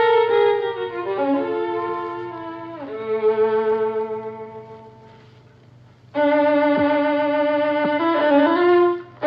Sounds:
Musical instrument, Music, fiddle

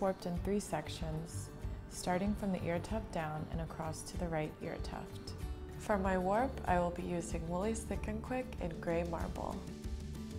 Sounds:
Speech, Music

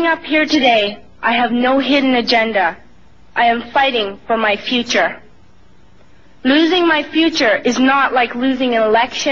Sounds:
woman speaking, Speech

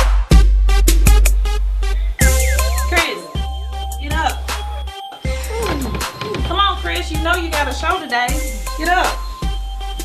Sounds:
Music, Hip hop music

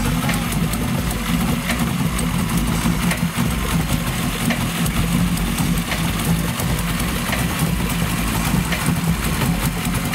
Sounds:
Idling, Vehicle

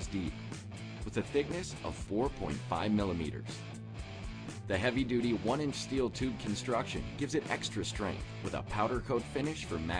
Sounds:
Speech, Music

